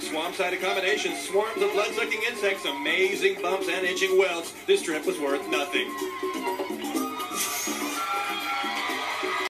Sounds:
Speech, Music

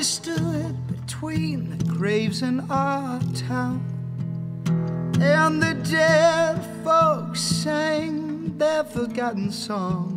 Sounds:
Music

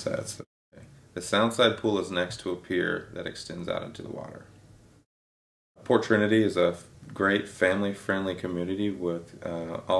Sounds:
Speech

